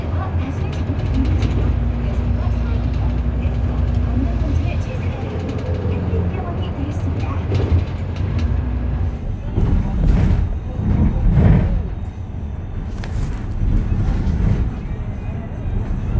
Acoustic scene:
bus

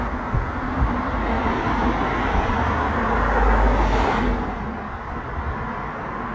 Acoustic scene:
street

